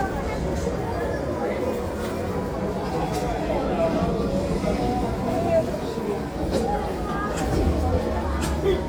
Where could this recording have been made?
in a crowded indoor space